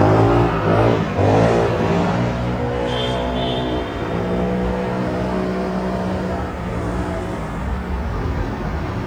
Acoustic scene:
street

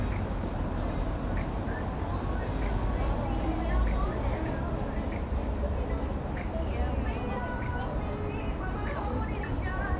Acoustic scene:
street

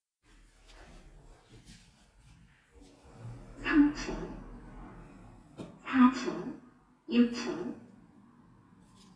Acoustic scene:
elevator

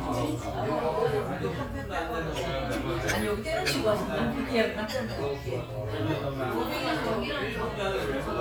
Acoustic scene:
crowded indoor space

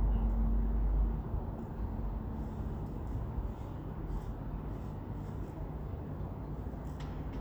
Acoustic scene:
residential area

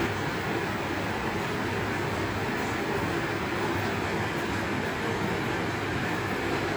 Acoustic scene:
subway station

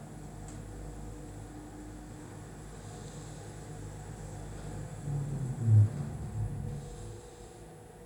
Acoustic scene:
elevator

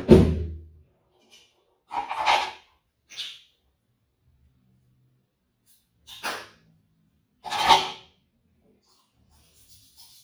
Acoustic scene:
restroom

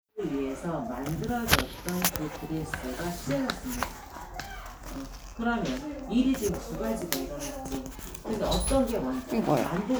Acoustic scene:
crowded indoor space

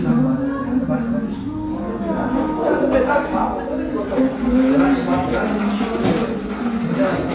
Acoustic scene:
cafe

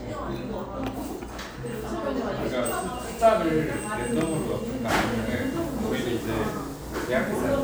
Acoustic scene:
cafe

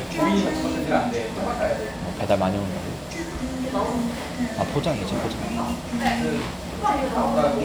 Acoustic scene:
restaurant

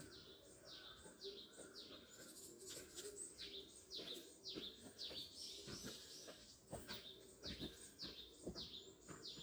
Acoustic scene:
park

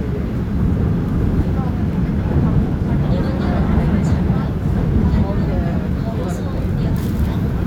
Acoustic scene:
subway train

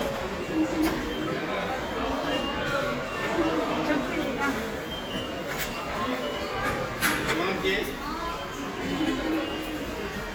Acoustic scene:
subway station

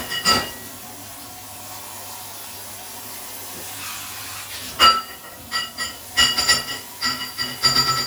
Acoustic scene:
kitchen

